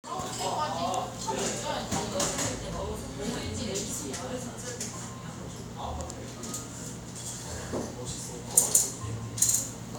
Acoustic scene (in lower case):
cafe